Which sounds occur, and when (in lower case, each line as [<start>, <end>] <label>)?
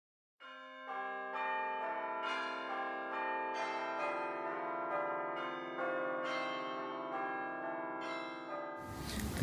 [0.39, 9.18] church bell
[8.77, 9.42] background noise